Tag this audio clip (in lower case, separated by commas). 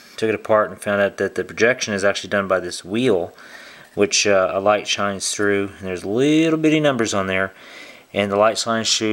speech